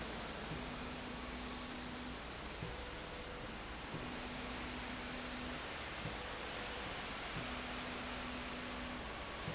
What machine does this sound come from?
slide rail